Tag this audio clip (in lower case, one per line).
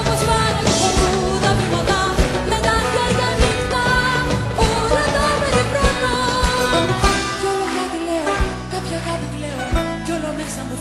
singing